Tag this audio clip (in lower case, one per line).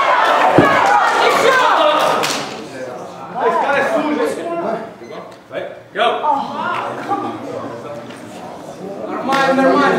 speech